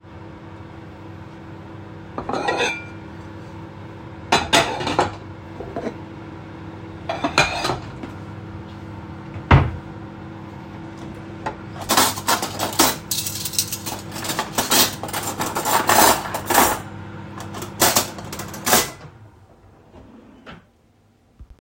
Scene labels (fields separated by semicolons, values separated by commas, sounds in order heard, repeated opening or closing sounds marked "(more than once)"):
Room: kitchen; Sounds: microwave, cutlery and dishes, wardrobe or drawer (more than once)